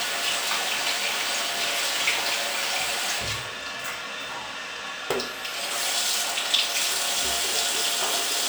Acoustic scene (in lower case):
restroom